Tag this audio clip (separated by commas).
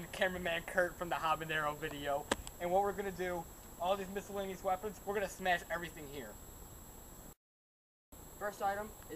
Speech